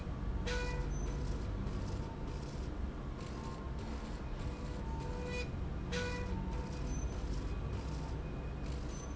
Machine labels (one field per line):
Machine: slide rail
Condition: normal